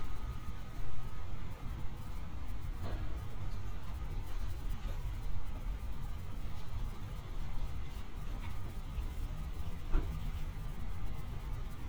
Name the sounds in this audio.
background noise